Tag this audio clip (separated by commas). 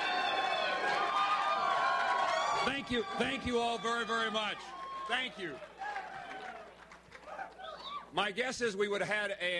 man speaking, Speech